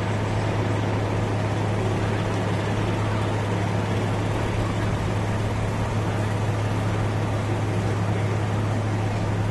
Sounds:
vehicle, speech

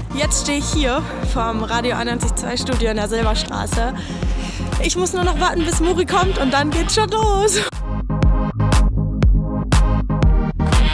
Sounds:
speech, music

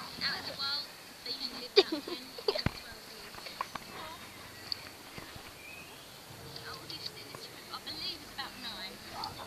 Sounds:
speech

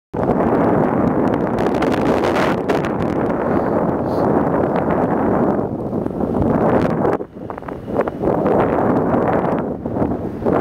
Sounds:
wind, wind noise, wind noise (microphone)

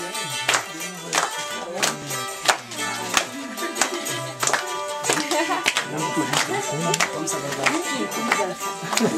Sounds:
speech, music, traditional music

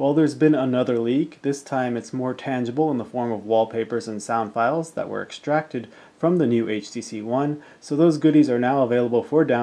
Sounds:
speech

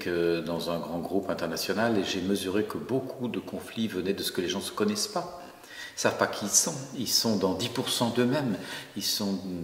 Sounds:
speech

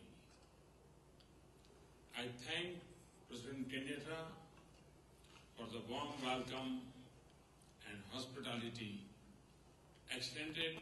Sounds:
narration, male speech, speech

